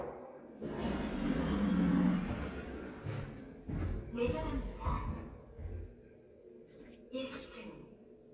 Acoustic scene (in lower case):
elevator